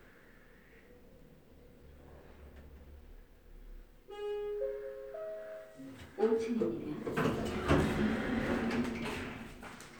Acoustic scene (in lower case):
elevator